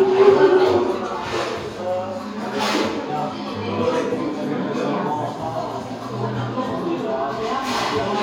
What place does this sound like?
cafe